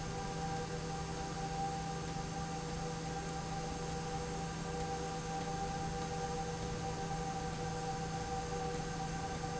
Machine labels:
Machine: slide rail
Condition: abnormal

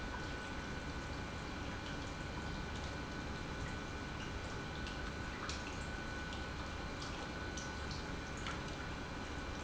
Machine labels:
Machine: pump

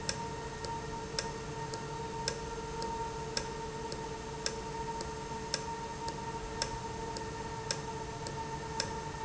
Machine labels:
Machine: valve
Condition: normal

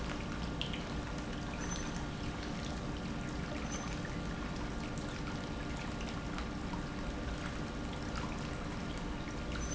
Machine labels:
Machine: pump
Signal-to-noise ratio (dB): -6 dB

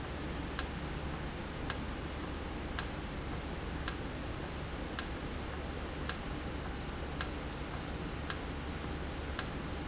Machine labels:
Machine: valve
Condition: normal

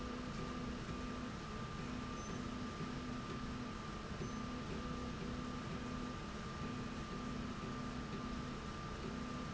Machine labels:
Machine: slide rail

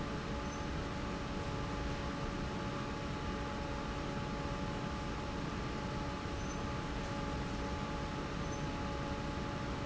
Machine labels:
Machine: fan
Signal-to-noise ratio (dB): -6 dB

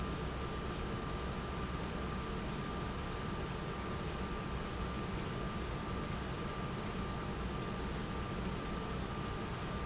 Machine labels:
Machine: pump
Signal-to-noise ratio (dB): -6 dB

